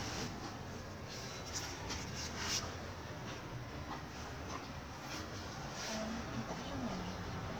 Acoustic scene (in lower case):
residential area